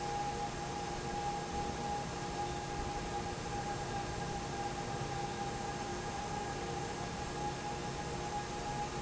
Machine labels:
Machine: fan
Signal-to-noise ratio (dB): -6 dB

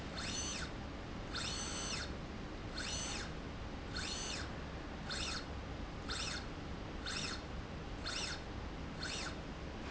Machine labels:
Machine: slide rail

